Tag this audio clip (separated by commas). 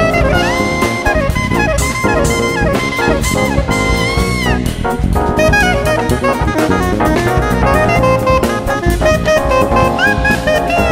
Brass instrument, Music, Jazz, Drum kit, Saxophone, Musical instrument, Drum